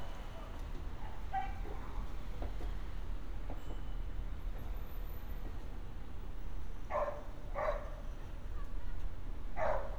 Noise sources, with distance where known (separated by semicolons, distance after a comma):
dog barking or whining, far